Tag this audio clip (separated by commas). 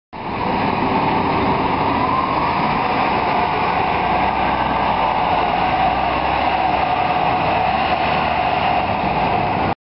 Vehicle, Bus